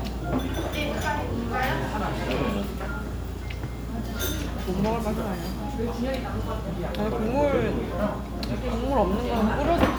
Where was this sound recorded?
in a restaurant